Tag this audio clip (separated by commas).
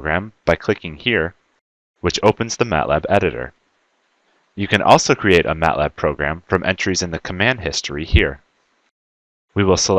Speech